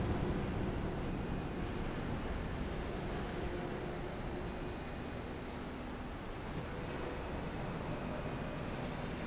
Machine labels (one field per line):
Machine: slide rail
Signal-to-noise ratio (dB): -6 dB